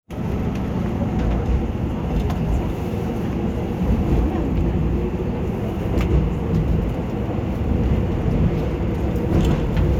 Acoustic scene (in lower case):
subway train